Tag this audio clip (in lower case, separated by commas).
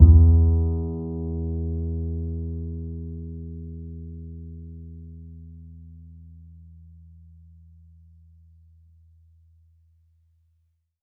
musical instrument, bowed string instrument, music